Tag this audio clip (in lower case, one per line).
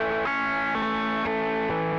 guitar
plucked string instrument
music
musical instrument